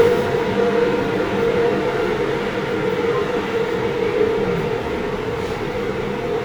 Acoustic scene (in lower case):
subway train